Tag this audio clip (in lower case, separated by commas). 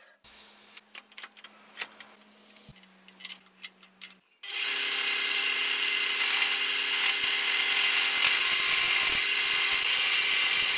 forging swords